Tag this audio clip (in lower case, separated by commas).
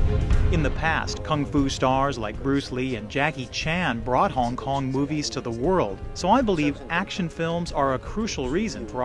speech, music